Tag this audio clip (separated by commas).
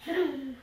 Laughter, Human voice